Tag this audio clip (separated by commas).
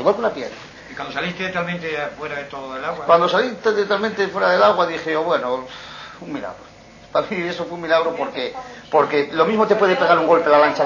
Speech